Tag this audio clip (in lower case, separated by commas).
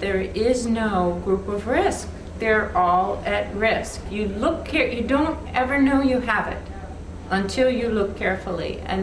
speech, female speech